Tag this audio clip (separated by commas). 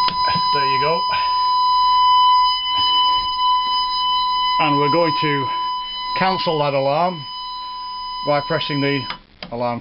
Alarm, Speech